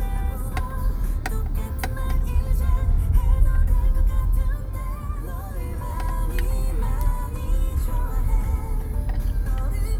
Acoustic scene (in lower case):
car